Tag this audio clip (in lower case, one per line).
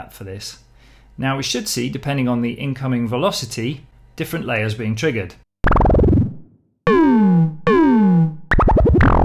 sampler
speech